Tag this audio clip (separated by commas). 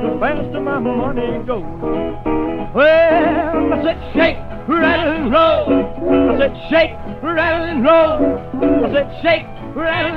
Music